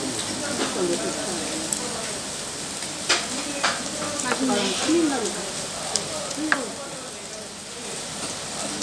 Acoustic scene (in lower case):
restaurant